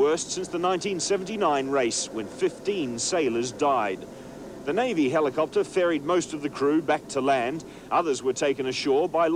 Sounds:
speech

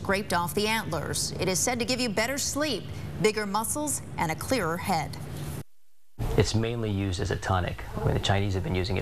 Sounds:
speech

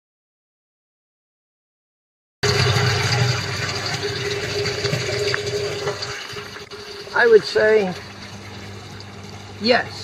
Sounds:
speech

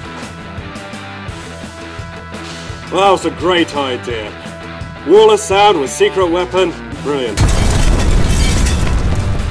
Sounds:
boom
music
speech

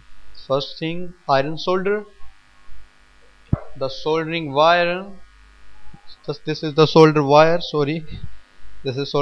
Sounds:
speech

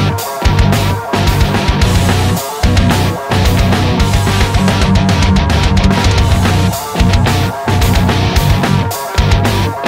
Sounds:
music

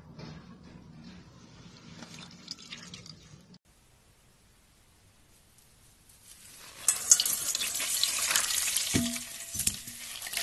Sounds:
squishing water

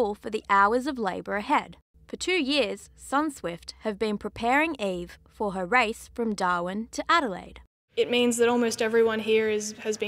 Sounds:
speech

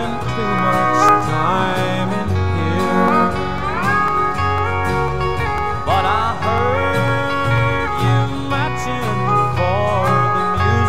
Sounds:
guitar
plucked string instrument
musical instrument
music
strum

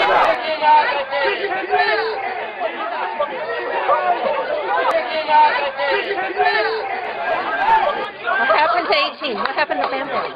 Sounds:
speech

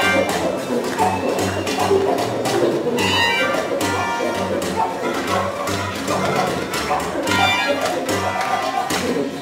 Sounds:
music

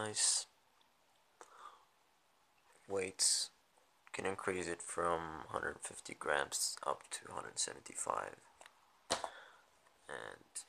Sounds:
speech

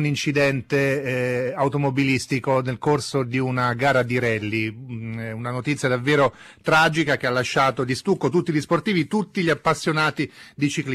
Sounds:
speech

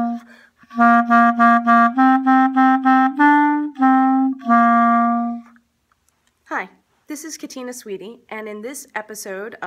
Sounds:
playing clarinet

